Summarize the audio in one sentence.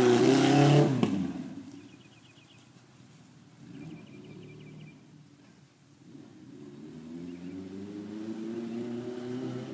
Cars passing by and birds chirping